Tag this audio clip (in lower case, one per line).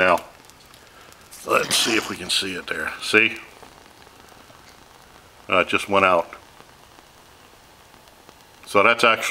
boiling
speech